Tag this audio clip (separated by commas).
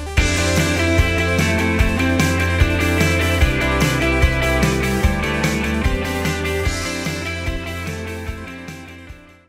Music